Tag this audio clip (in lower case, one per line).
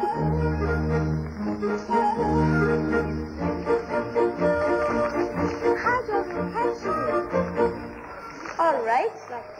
music
speech